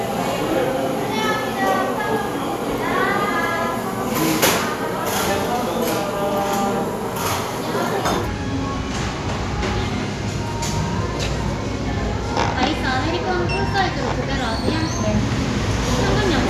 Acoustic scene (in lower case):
cafe